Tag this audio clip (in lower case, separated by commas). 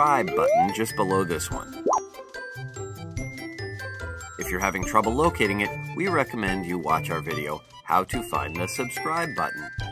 speech, music